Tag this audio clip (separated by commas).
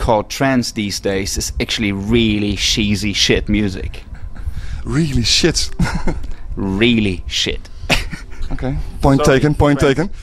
Speech